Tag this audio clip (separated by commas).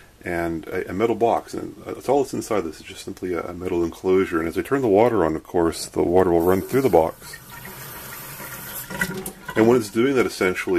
Speech, inside a small room, Sink (filling or washing)